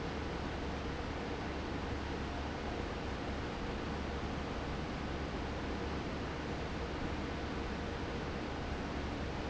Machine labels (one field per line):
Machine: fan